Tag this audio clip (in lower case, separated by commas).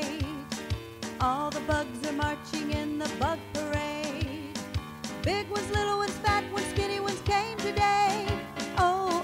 music